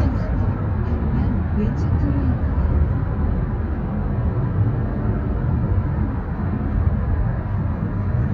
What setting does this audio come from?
car